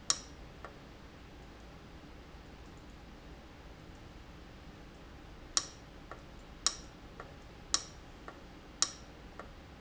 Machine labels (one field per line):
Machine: valve